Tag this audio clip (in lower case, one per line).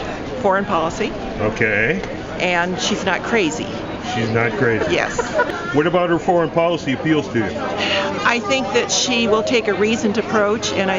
speech